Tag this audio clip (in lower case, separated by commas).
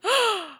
respiratory sounds, human voice, breathing, gasp